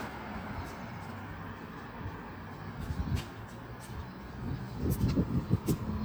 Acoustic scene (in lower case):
street